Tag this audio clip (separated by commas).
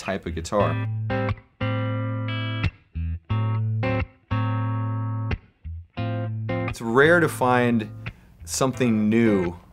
Music, Speech